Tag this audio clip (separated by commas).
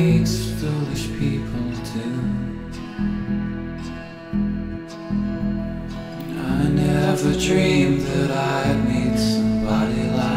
Music, Musical instrument